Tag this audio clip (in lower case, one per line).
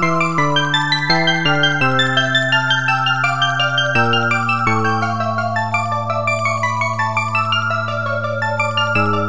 glockenspiel
mallet percussion
marimba